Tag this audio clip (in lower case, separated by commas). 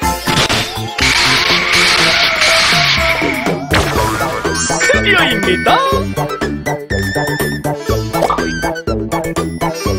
speech, music